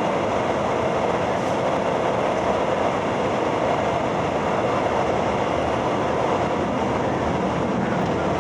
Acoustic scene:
subway train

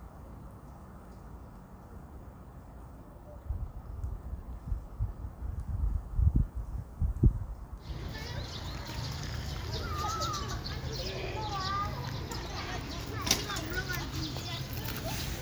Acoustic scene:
park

